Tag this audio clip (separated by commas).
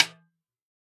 Musical instrument, Percussion, Music, Snare drum, Drum